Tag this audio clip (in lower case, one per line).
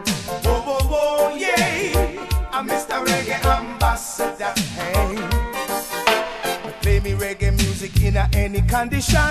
music
reggae